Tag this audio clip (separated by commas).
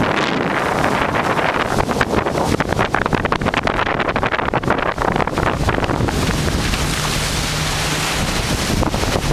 Vehicle, Water vehicle